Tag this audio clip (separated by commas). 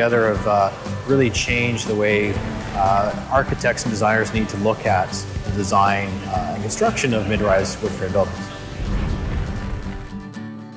Speech, Music